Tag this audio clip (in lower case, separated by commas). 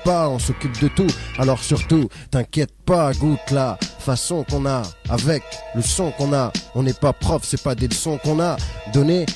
music